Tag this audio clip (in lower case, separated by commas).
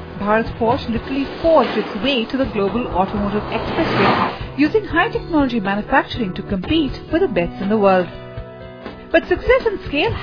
music, speech